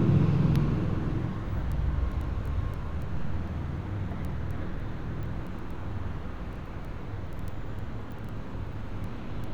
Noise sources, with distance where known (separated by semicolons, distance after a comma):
engine of unclear size